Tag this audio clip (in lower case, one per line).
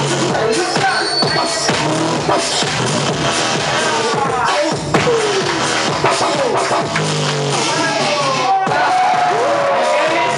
speech
music